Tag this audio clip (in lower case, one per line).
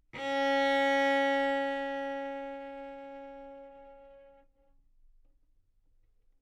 bowed string instrument
musical instrument
music